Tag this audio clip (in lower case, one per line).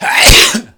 respiratory sounds
sneeze